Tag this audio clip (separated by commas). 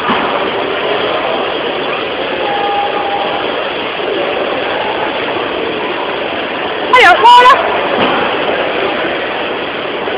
Speech